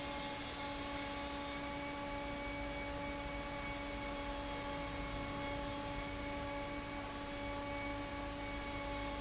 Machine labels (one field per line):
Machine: fan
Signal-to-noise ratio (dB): 0 dB